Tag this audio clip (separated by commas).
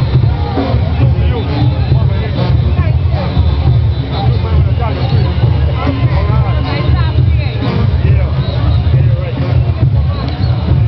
Speech, Exciting music, Music